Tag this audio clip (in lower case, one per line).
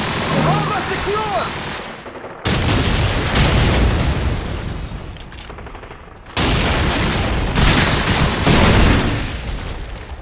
gunshot